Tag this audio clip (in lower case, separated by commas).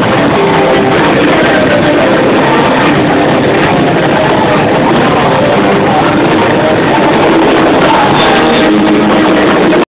musical instrument, guitar, music